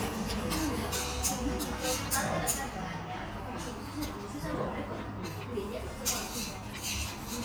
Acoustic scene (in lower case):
restaurant